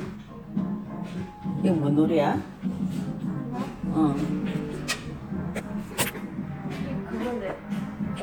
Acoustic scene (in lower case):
cafe